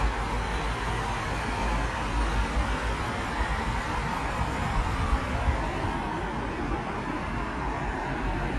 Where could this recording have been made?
on a street